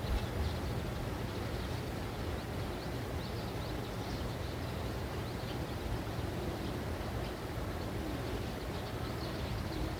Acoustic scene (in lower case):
residential area